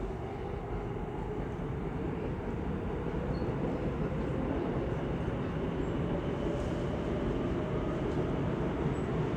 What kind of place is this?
subway train